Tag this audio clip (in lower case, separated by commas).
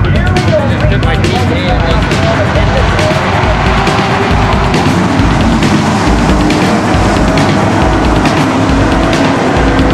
car, speech, vehicle